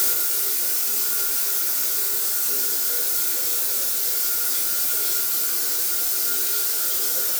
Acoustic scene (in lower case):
restroom